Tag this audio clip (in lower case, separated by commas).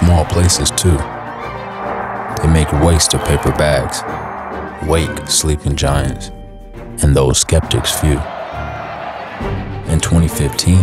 music, speech